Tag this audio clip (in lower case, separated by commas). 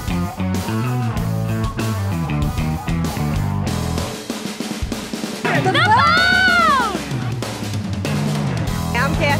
pop music, rhythm and blues, speech, music